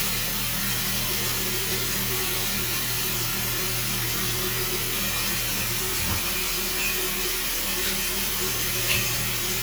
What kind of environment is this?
restroom